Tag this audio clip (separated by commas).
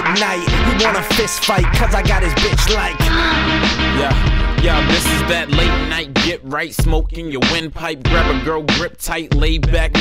Music